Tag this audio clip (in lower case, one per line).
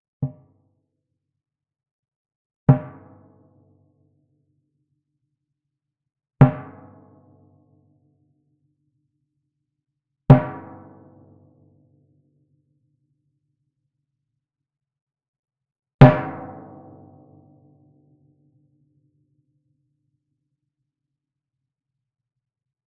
drum
musical instrument
music
percussion